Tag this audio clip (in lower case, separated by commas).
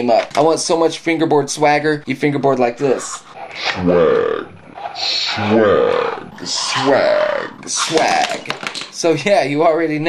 speech, inside a small room